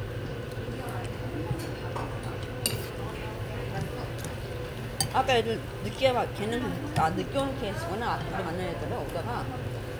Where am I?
in a restaurant